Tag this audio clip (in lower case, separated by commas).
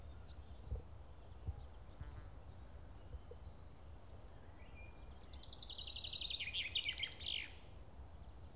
animal, insect, wild animals, bird